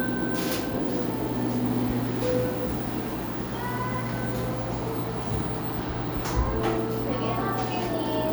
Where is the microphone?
in a cafe